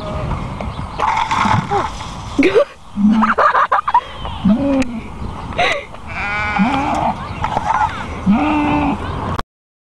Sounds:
Speech, Sheep, Bleat

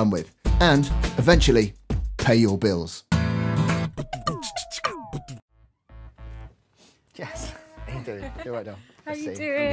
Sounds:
Speech, Music

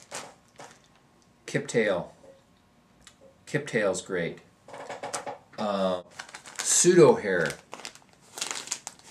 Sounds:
Speech

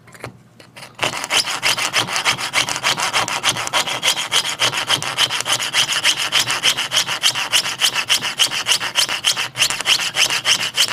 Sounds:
Wood, Rub, Sawing

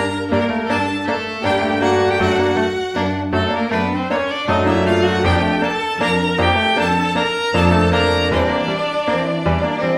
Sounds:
Music

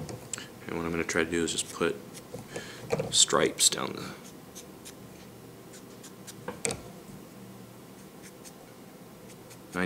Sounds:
Speech

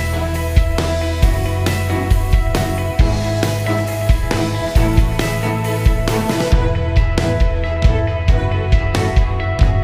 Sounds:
Music

